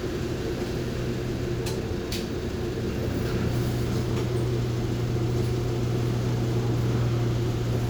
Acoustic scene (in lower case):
bus